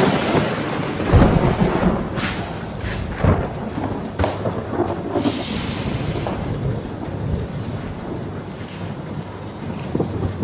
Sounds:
raining

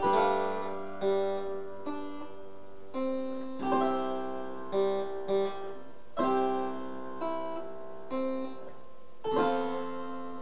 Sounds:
playing harpsichord

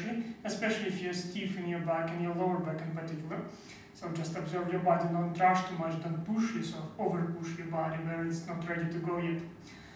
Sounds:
speech

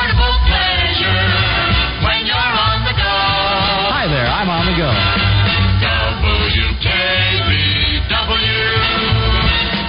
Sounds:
music
speech

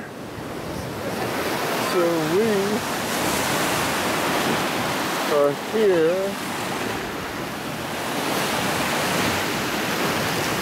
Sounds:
ocean burbling
ocean
surf

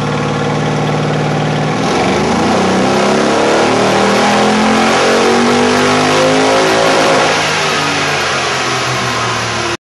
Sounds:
vehicle
car

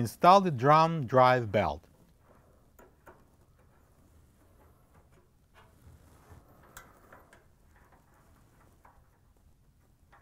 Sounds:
speech

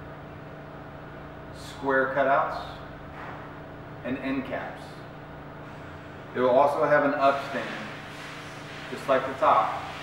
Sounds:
speech

